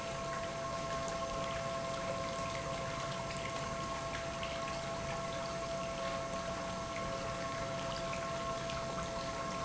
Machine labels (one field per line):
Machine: pump